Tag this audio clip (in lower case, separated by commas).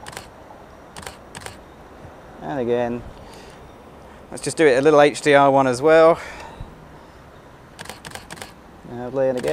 speech